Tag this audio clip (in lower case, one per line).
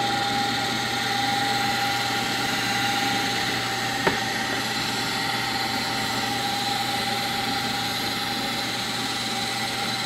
tools